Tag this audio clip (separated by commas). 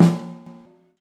Music, Snare drum, Drum, Musical instrument, Percussion